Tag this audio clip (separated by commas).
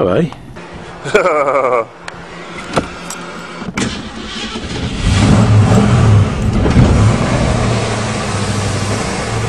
Accelerating, Vehicle